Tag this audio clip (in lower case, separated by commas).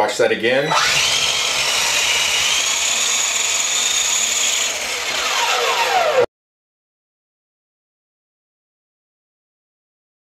speech, helicopter